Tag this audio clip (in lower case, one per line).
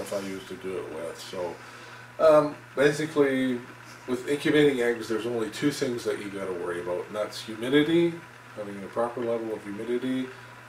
speech
inside a small room